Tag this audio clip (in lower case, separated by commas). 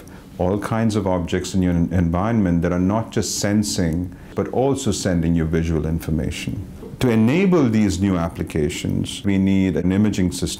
speech